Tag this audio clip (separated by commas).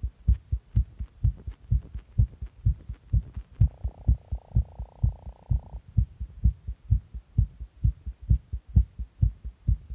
Heart sounds, Throbbing, Hum